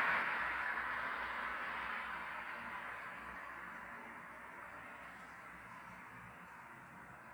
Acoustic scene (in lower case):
street